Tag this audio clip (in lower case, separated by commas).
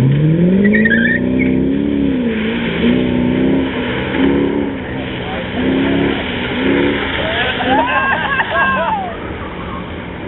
vehicle, speech, car